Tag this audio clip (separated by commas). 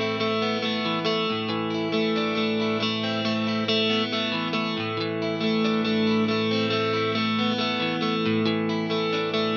playing electric guitar